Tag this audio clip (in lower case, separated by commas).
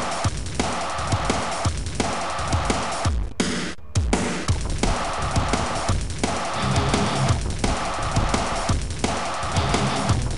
theme music, music